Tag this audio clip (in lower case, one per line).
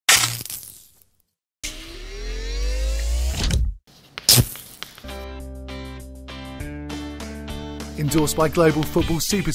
music
speech